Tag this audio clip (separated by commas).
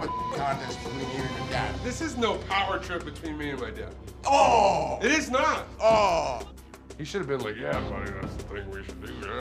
Speech, Music